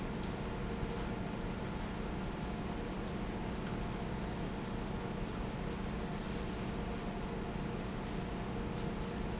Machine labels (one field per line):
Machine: fan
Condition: normal